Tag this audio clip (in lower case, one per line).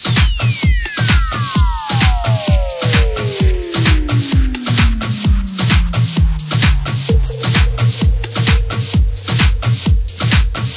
music